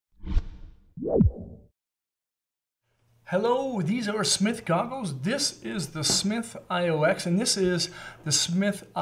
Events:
[0.15, 0.81] sound effect
[0.95, 1.68] sound effect
[2.82, 9.01] background noise
[3.23, 7.87] male speech
[6.05, 6.17] generic impact sounds
[7.89, 8.15] breathing
[8.23, 9.01] male speech

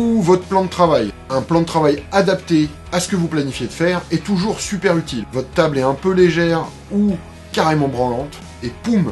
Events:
[0.00, 1.06] male speech
[0.00, 9.11] music
[1.26, 1.97] male speech
[2.12, 2.69] male speech
[2.88, 3.96] male speech
[4.08, 5.19] male speech
[5.30, 6.66] male speech
[6.88, 7.18] male speech
[7.48, 8.32] male speech
[8.60, 9.11] male speech

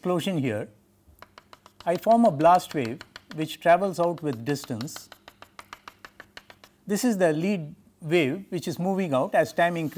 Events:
[0.00, 9.95] background noise
[0.01, 0.80] man speaking
[1.10, 6.69] tap
[1.74, 2.95] man speaking
[3.26, 4.91] man speaking
[6.81, 7.79] man speaking
[8.05, 9.95] man speaking

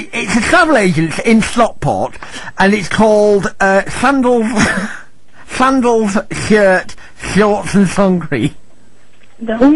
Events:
[0.00, 2.17] man speaking
[0.00, 9.75] conversation
[0.00, 9.75] mechanisms
[2.21, 2.57] breathing
[2.57, 4.62] man speaking
[4.60, 5.17] breathing
[5.28, 5.49] breathing
[5.58, 6.96] man speaking
[6.95, 7.16] breathing
[7.18, 8.58] man speaking
[8.84, 9.41] generic impact sounds
[9.40, 9.75] female speech

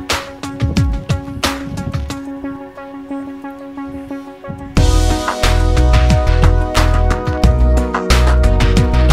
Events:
[0.00, 9.12] music

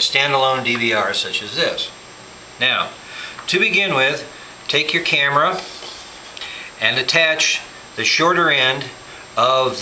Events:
[0.00, 1.92] man speaking
[0.00, 9.81] mechanisms
[0.71, 0.78] tick
[2.58, 2.96] man speaking
[2.95, 3.32] breathing
[3.32, 3.40] tick
[3.45, 4.31] man speaking
[4.29, 4.59] breathing
[4.68, 5.67] man speaking
[5.09, 5.17] tick
[5.51, 6.32] surface contact
[5.55, 5.62] generic impact sounds
[5.82, 5.90] generic impact sounds
[6.37, 6.71] breathing
[6.76, 7.68] man speaking
[7.94, 8.93] man speaking
[9.03, 9.29] breathing
[9.36, 9.81] man speaking

